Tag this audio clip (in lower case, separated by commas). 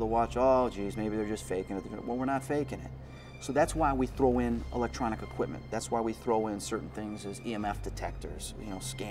speech, music